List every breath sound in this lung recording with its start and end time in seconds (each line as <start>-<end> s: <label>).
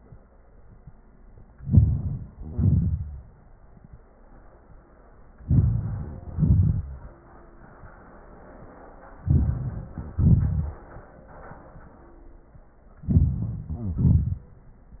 1.58-2.38 s: inhalation
2.34-2.60 s: wheeze
2.37-3.30 s: exhalation
5.44-6.27 s: inhalation
5.90-6.39 s: wheeze
6.27-7.10 s: exhalation
9.23-10.15 s: inhalation
10.14-10.89 s: exhalation
13.06-13.69 s: inhalation
13.66-14.03 s: wheeze
13.70-14.48 s: exhalation